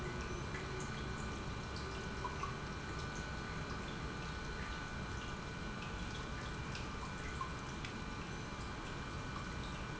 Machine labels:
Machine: pump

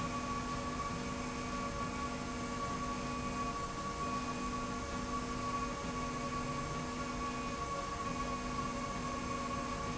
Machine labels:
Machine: slide rail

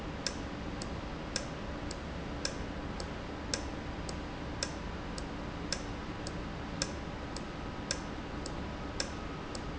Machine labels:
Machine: valve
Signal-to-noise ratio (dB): -6 dB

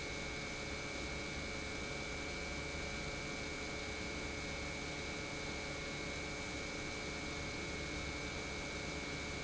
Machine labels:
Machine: pump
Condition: normal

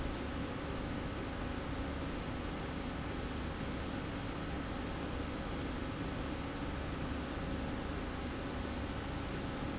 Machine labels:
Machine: slide rail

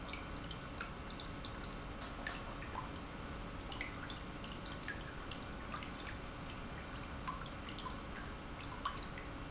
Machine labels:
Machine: pump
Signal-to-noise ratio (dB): 6 dB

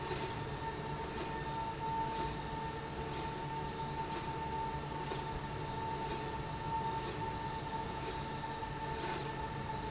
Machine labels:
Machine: slide rail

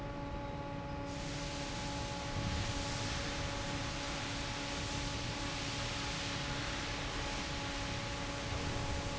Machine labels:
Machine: fan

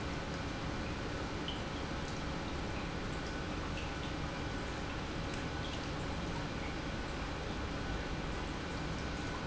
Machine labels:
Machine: pump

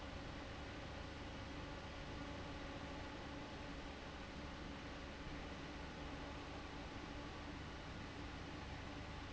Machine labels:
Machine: fan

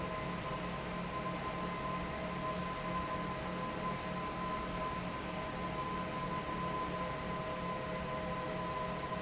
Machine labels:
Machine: fan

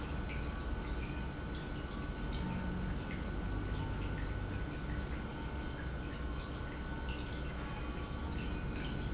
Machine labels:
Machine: pump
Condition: normal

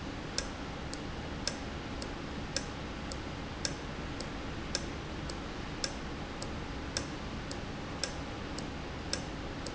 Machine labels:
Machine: valve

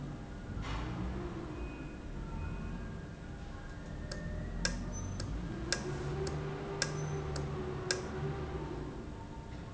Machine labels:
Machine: valve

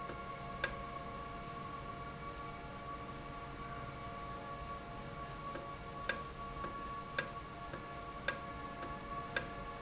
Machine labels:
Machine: valve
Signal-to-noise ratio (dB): 0 dB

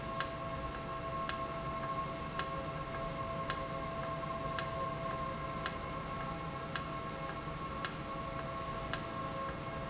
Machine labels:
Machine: valve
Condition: normal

